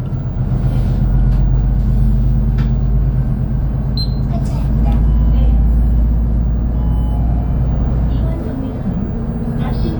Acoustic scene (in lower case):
bus